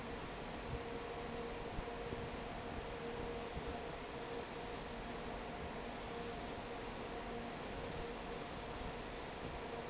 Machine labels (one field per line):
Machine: fan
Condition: normal